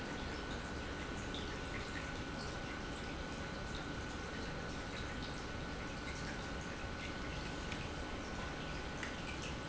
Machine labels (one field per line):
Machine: pump